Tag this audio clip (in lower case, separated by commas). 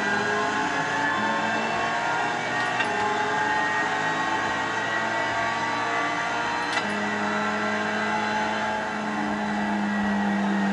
car, motor vehicle (road)